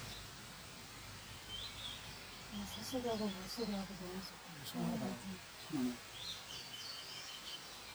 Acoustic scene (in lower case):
park